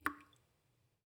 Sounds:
Raindrop, Water, Drip, Rain, Liquid

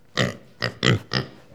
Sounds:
livestock, Animal

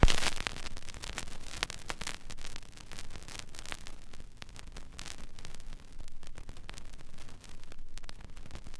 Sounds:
Crackle

